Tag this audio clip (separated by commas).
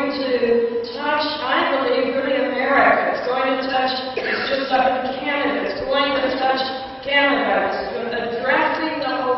Speech